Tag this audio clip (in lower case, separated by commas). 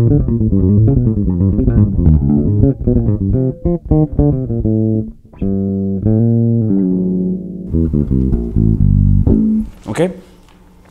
playing bass guitar